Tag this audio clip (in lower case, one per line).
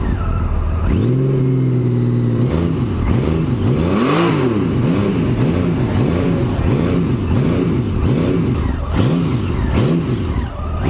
driving motorcycle
motor vehicle (road)
vehicle
motorcycle
accelerating